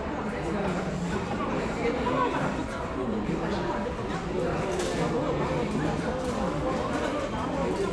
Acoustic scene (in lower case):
crowded indoor space